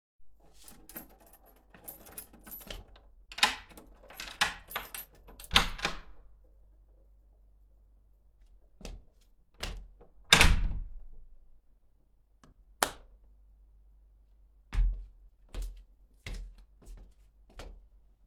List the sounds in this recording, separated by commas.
keys, door, footsteps, light switch